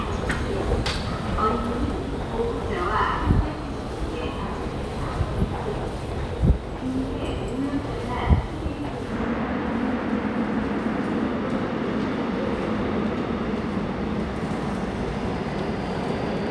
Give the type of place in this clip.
subway station